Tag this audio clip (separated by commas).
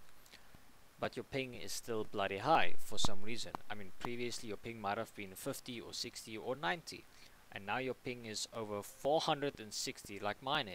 Speech